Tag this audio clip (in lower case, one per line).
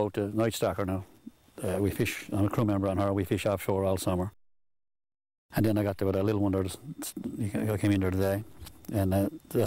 speech